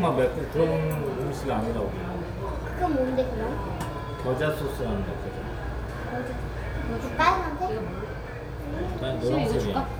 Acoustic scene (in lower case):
restaurant